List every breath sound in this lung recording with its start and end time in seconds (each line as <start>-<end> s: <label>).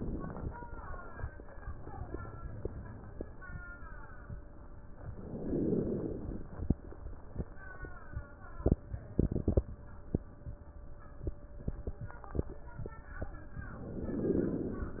5.04-6.73 s: inhalation
13.56-15.00 s: inhalation